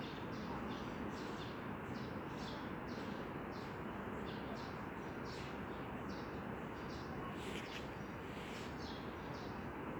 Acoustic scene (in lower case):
residential area